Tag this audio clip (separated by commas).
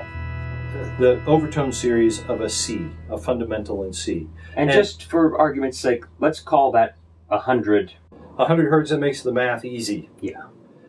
Harmonic, Music, Speech